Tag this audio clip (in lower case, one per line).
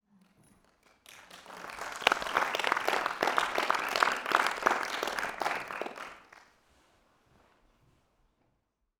applause
human group actions